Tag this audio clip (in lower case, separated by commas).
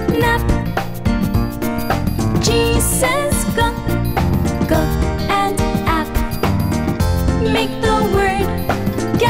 music, music for children